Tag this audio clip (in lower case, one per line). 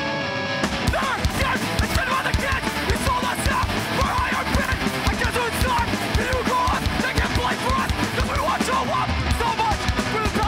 music